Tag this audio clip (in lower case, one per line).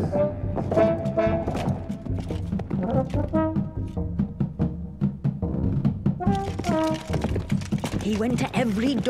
percussion
drum